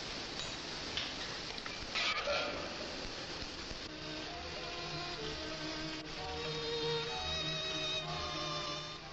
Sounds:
Speech, Music

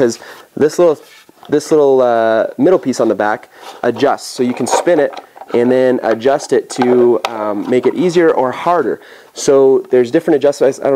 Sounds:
Speech

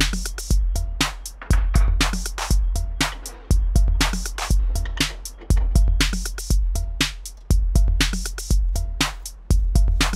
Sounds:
Music, Drum, Bass drum

